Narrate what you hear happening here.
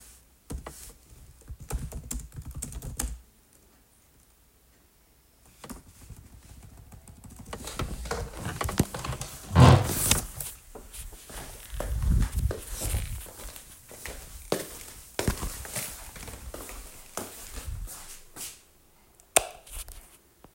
I was doing my task on a Word document and suddenly I realized that the kitchen lights were turned on. As a result, I stood up, walked, turned them off, and returned back to the office.